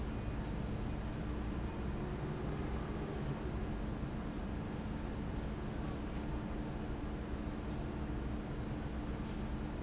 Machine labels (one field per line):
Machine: fan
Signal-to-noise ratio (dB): -6 dB